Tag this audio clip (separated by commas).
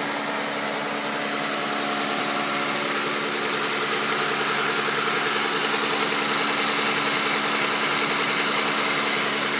Idling, Vehicle, Medium engine (mid frequency), Engine